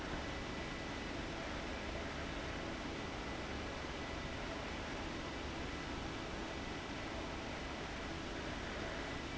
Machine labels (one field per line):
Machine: fan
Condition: abnormal